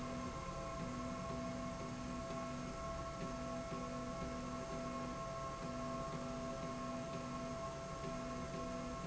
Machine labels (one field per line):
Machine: slide rail